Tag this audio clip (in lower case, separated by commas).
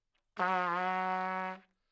music, trumpet, brass instrument, musical instrument